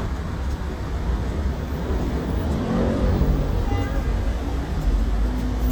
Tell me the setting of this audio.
street